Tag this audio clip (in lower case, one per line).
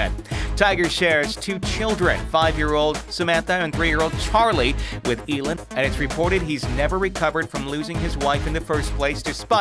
music
speech